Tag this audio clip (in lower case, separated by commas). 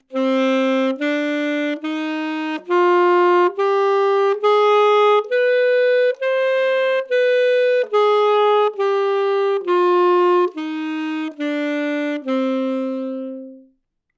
musical instrument, music, wind instrument